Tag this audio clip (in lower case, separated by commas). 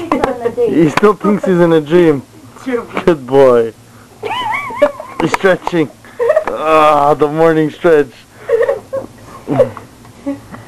speech